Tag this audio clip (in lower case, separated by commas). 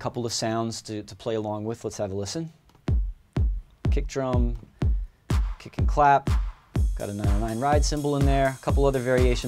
music, speech